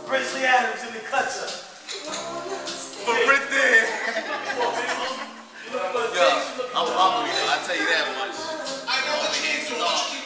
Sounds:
music
speech

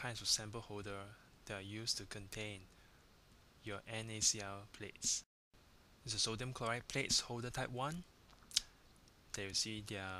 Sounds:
speech

